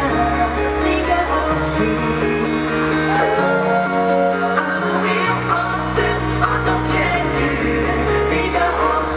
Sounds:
Singing, Music

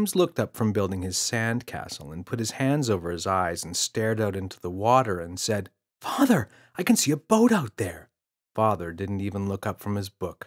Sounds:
Speech

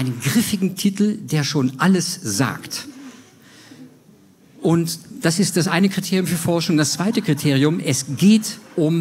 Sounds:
Speech

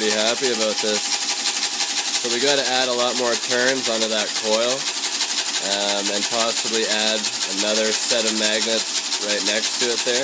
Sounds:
Speech, Engine

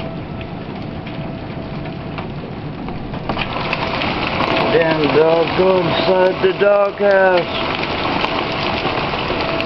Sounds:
Rain, Raindrop, Rain on surface

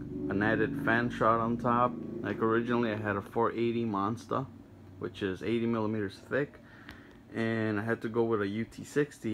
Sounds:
Speech

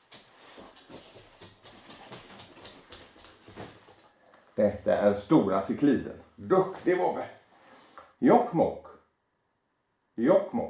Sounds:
Speech

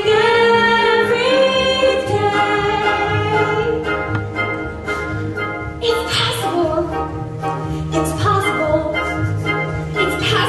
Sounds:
Hammond organ, Organ

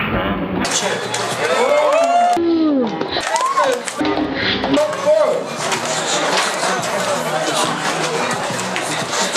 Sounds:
Speech

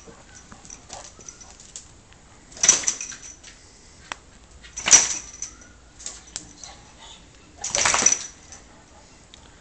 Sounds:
Animal, Domestic animals, Dog

